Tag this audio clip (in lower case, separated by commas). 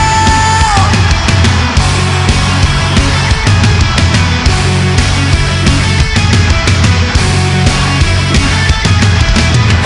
music, inside a large room or hall, singing